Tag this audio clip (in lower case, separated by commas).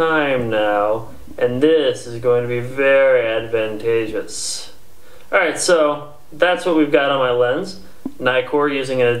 speech